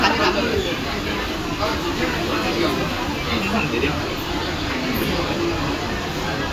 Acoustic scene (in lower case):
crowded indoor space